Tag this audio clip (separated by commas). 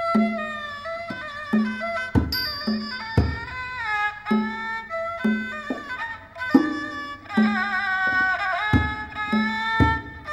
Music, Traditional music